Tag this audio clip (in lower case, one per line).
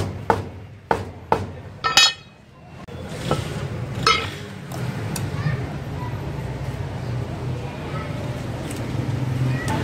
chopping food